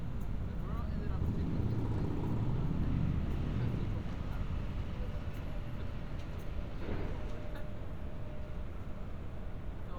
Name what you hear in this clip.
medium-sounding engine, person or small group talking